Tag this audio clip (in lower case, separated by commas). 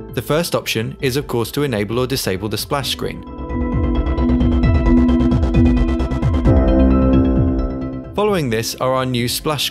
music, speech